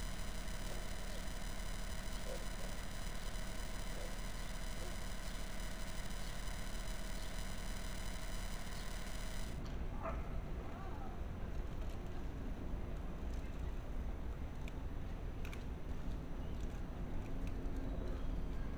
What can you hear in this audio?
dog barking or whining